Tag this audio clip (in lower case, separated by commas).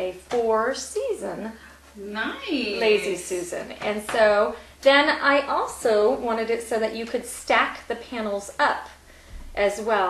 speech